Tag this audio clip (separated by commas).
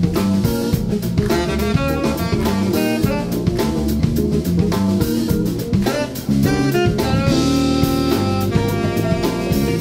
Music